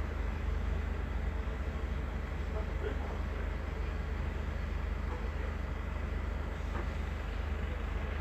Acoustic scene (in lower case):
residential area